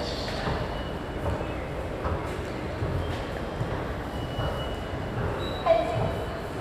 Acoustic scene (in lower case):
subway station